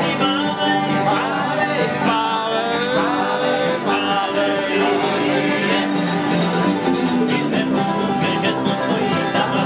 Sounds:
Country, Music

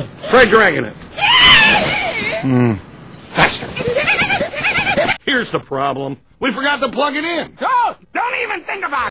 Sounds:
Speech

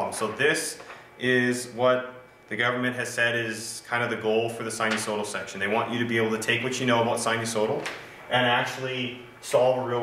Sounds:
Speech

